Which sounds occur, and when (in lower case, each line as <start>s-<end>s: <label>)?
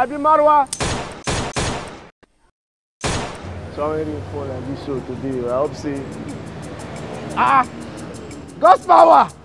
0.0s-0.7s: man speaking
0.7s-0.7s: tick
0.8s-1.1s: gunfire
1.3s-2.1s: gunfire
2.2s-2.5s: background noise
3.0s-9.4s: traffic noise
3.0s-3.4s: gunfire
3.7s-4.1s: man speaking
4.3s-6.1s: man speaking
4.9s-9.4s: music
7.3s-7.6s: shout
8.6s-9.2s: shout